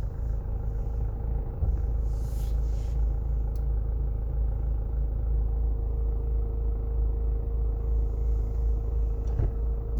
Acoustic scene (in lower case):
car